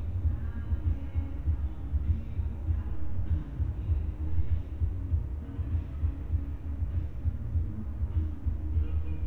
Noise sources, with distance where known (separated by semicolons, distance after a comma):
music from a fixed source, far